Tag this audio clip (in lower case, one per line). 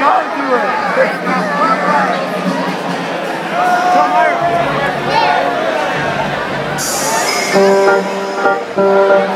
music
speech